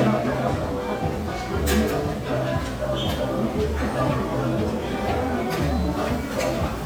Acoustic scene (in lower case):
restaurant